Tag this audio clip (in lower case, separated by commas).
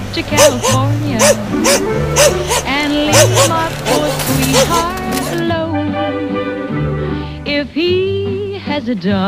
pets, music, animal, bow-wow, dog